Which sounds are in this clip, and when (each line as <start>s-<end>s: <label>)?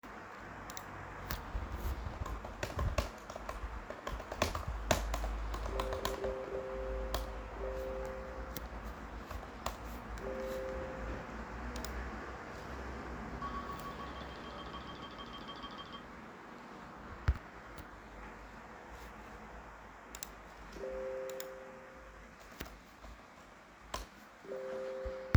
2.0s-11.2s: keyboard typing
5.9s-9.0s: phone ringing
10.2s-11.0s: phone ringing
13.2s-17.6s: phone ringing
20.8s-21.6s: phone ringing
24.5s-25.4s: phone ringing